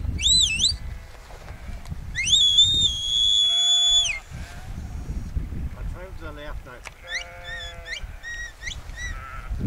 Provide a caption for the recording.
Whistling followed by murmuring and more whistling